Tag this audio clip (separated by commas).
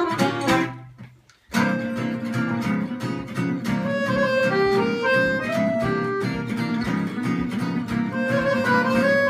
Guitar, Acoustic guitar, Music, Plucked string instrument, Jazz, Musical instrument, Strum